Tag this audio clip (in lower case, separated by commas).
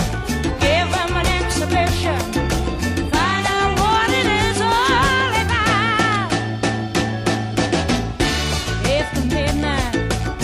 music